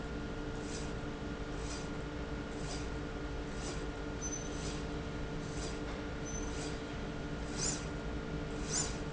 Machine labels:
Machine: slide rail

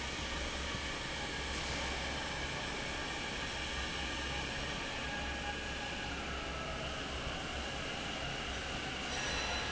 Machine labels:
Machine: fan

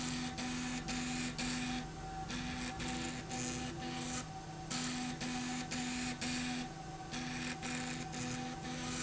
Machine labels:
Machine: slide rail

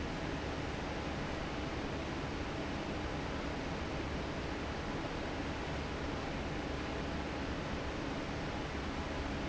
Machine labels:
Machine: fan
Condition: normal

